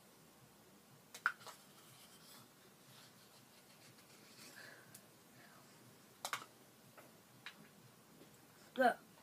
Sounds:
Speech

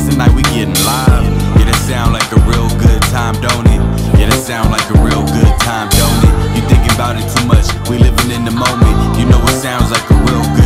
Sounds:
Jazz, Music

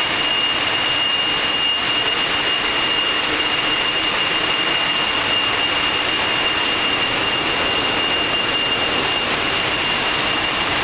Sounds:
Idling, Engine, Heavy engine (low frequency)

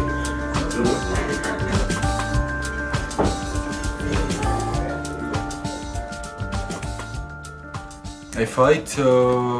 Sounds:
Speech, Music

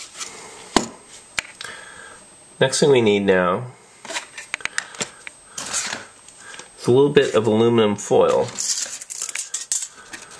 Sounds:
inside a small room, Speech

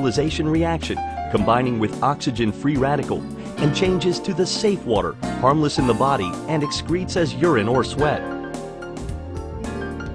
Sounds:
Music, Speech

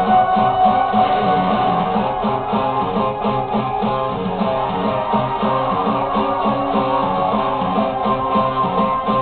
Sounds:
Plucked string instrument, Musical instrument, Music, Guitar, Bass guitar

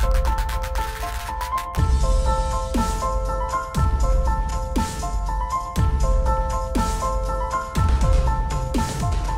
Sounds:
Music

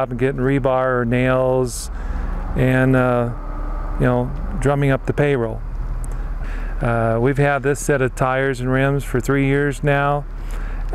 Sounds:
Speech

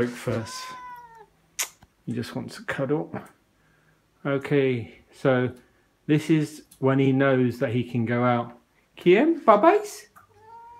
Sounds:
Speech

